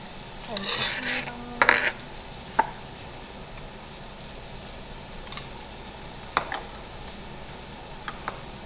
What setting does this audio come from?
restaurant